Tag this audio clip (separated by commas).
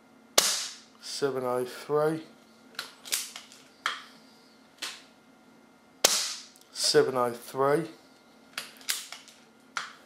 Speech